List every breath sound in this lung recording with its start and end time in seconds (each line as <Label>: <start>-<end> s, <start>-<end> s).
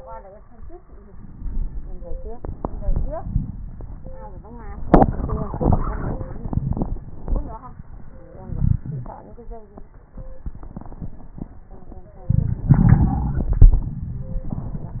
Inhalation: 1.06-2.36 s
Exhalation: 2.34-4.88 s
Wheeze: 6.47-6.77 s, 8.49-8.82 s, 8.89-9.11 s, 12.32-13.65 s
Crackles: 2.34-4.88 s